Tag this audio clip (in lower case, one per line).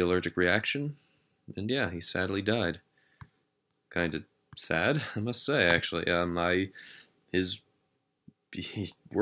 speech